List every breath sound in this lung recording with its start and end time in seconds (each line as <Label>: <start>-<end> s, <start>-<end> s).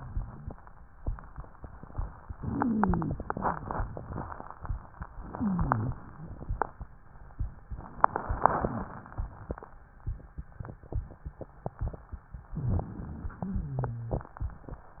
Inhalation: 2.33-3.19 s, 5.20-6.05 s, 12.58-13.44 s
Exhalation: 13.43-14.29 s
Wheeze: 2.33-3.19 s, 5.20-6.05 s, 13.43-14.29 s
Rhonchi: 12.58-13.07 s